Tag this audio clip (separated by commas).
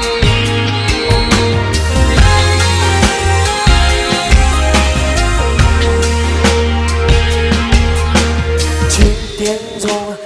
Music